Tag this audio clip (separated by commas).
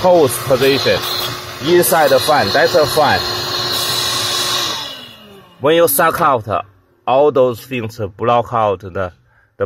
air conditioning noise